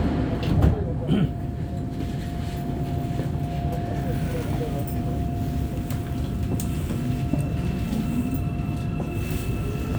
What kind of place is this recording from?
subway train